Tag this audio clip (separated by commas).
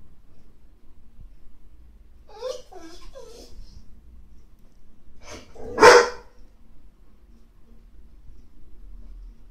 dog barking, Dog, Bark, Animal, Domestic animals